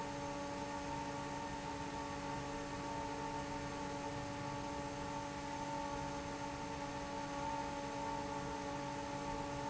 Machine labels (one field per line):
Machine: fan